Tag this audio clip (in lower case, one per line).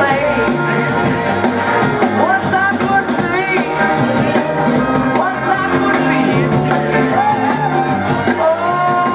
music